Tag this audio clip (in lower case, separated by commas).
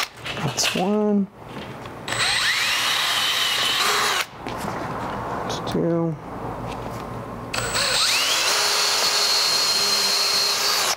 drill, speech